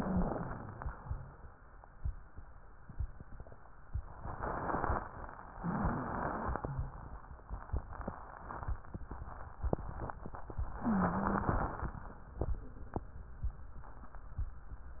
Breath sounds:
Inhalation: 5.48-6.94 s, 10.80-11.70 s
Wheeze: 0.00-0.90 s, 5.48-6.94 s, 10.80-11.70 s

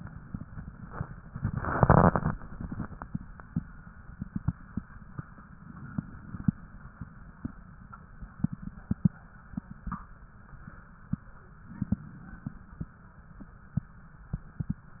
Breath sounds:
Inhalation: 5.57-6.59 s, 11.61-12.63 s

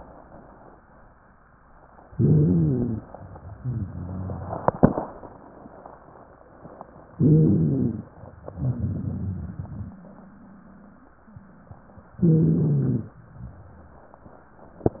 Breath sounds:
Inhalation: 2.12-3.05 s, 7.12-8.06 s, 12.22-13.12 s
Exhalation: 3.57-4.68 s, 8.55-11.11 s
Wheeze: 3.57-4.68 s
Stridor: 2.12-3.05 s, 7.12-8.06 s, 12.22-13.12 s
Rhonchi: 8.55-11.11 s

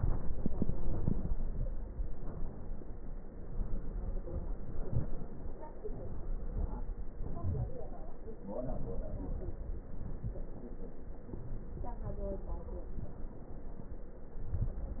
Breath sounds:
Inhalation: 0.11-1.91 s, 7.10-8.37 s
Exhalation: 8.36-9.85 s
Wheeze: 7.43-7.71 s
Crackles: 0.11-1.91 s, 8.36-9.85 s

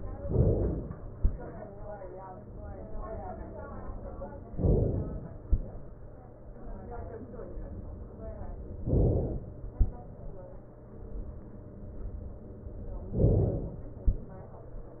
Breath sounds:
Inhalation: 0.27-1.16 s, 4.59-5.48 s, 8.97-9.78 s, 13.16-14.10 s

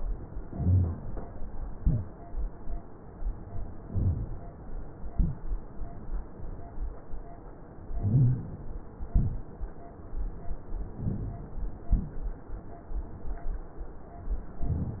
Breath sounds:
Inhalation: 0.45-1.00 s, 3.88-4.42 s, 8.02-8.66 s, 11.00-11.65 s
Exhalation: 1.71-2.14 s, 5.11-5.55 s, 9.08-9.52 s

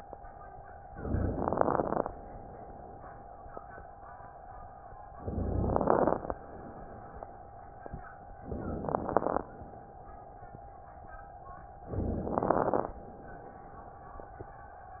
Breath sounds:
Inhalation: 0.87-2.03 s, 5.20-6.36 s, 8.37-9.53 s, 11.90-13.05 s
Crackles: 0.87-2.03 s, 5.20-6.36 s, 8.37-9.53 s, 11.90-13.05 s

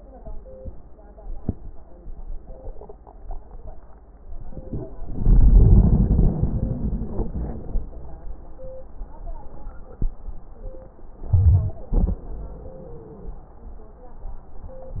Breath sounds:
Inhalation: 4.31-4.90 s, 11.27-11.77 s
Exhalation: 5.07-8.00 s, 11.91-13.39 s
Wheeze: 11.91-13.39 s
Crackles: 4.31-4.90 s

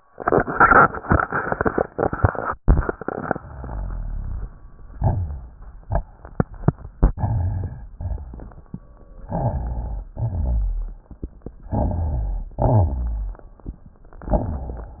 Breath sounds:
Inhalation: 7.12-7.93 s, 9.29-10.14 s, 11.69-12.53 s
Exhalation: 8.00-8.81 s, 10.16-11.20 s, 12.58-13.88 s
Rhonchi: 7.14-7.91 s, 7.96-8.68 s, 10.13-11.03 s, 12.55-13.35 s
Crackles: 7.94-8.81 s

